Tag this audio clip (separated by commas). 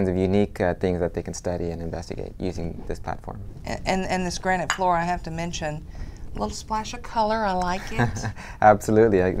Speech